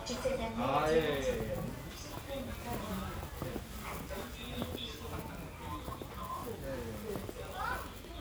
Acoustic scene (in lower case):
crowded indoor space